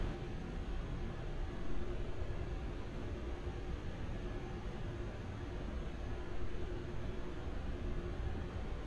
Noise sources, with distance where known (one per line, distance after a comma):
background noise